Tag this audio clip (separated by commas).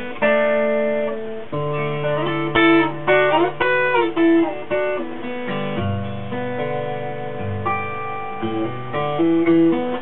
Acoustic guitar, Musical instrument, Plucked string instrument, Guitar, Music